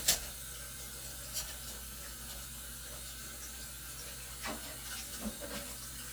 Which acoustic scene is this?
kitchen